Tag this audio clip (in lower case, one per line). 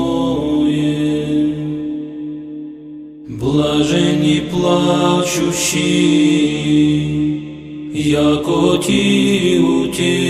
music
mantra